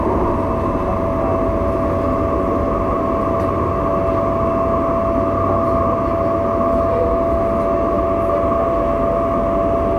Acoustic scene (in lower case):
subway train